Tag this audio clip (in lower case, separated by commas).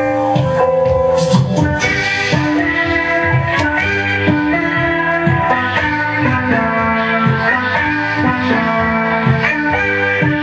music, rock music